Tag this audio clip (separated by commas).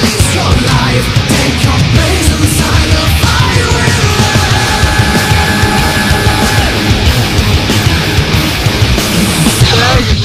Angry music, Music